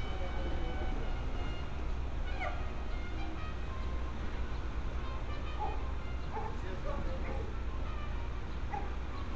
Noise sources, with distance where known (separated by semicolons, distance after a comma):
music from a fixed source; person or small group talking, far; dog barking or whining, far